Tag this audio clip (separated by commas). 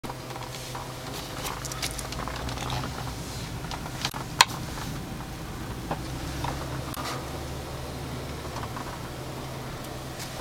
Vehicle